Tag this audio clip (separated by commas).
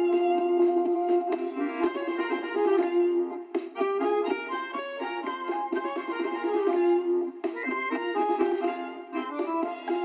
Music